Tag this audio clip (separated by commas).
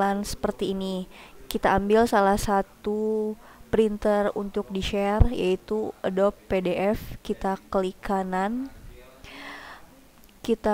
Speech